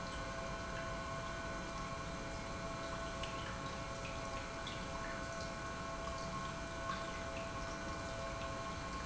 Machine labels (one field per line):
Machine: pump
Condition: normal